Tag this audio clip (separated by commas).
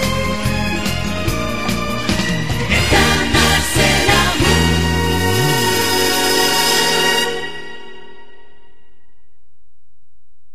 Music, Background music